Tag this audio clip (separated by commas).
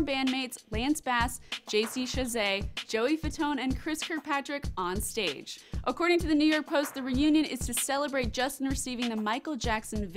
Music, Speech